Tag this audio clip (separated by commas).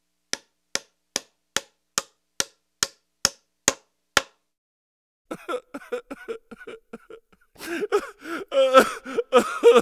hammering nails